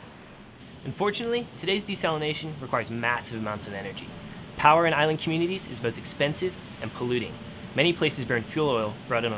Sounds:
Speech

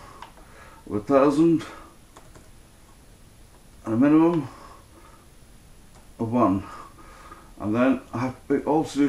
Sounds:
Computer keyboard, Speech

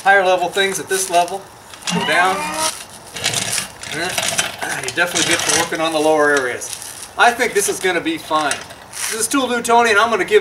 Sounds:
Speech, outside, urban or man-made

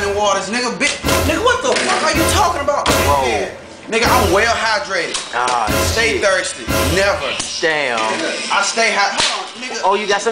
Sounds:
Music, Speech

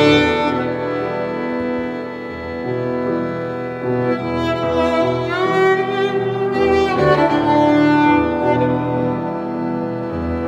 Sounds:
Music, Musical instrument, fiddle

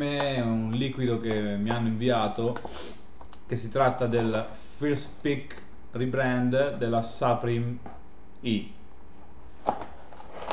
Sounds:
Speech

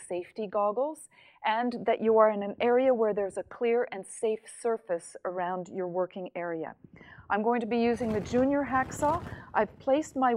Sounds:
Speech

